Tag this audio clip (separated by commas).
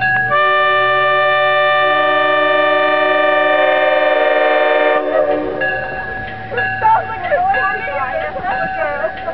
Speech, Rail transport, Train, Railroad car, Vehicle, Train horn